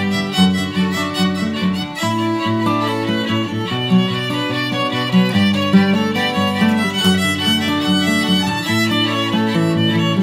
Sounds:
Music

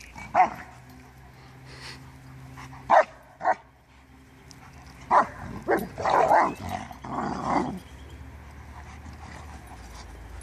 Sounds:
Animal, canids, pets, Dog

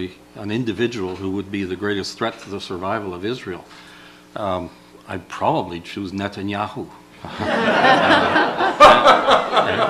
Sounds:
Speech, chortle, Snicker

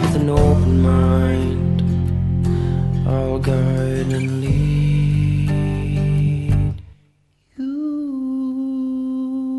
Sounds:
Music

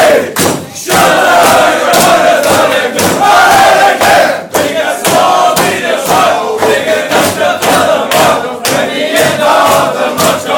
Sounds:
Singing, inside a small room

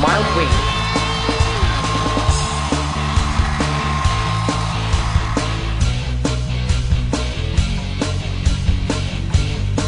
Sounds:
Hair dryer

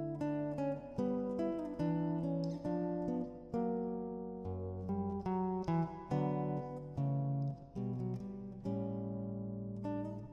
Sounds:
Music, Musical instrument

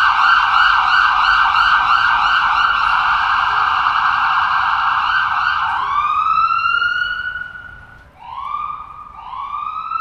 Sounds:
ambulance siren

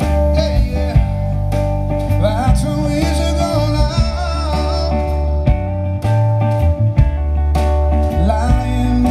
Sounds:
Music

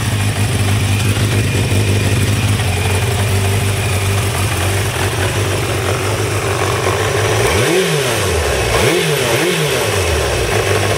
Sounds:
Vehicle, Medium engine (mid frequency), Motorcycle, Motor vehicle (road)

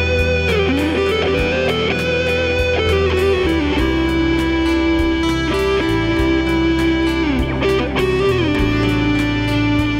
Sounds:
Electric guitar, Strum, playing electric guitar, Music, Musical instrument, Guitar, Plucked string instrument

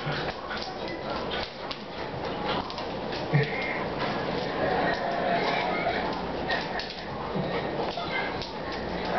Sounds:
Speech

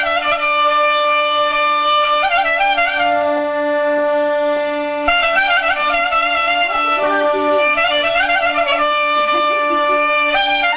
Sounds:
Clarinet, Speech, Musical instrument, Music, Wind instrument

